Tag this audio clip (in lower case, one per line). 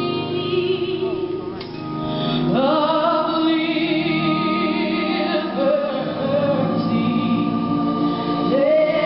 female singing